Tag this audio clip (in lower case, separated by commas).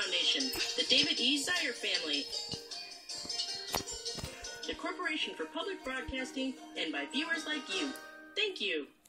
music, speech